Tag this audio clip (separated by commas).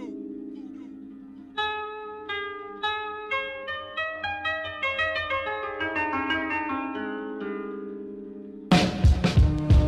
Zither, Music